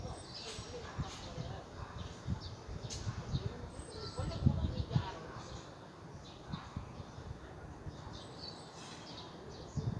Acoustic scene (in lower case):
residential area